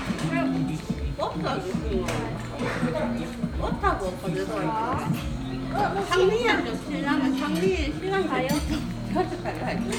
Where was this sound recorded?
in a crowded indoor space